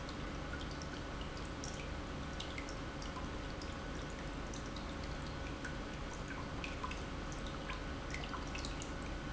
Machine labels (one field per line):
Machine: pump